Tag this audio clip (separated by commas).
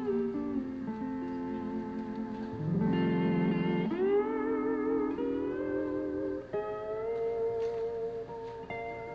playing steel guitar